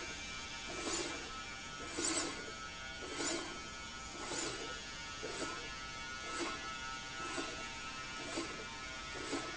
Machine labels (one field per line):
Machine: slide rail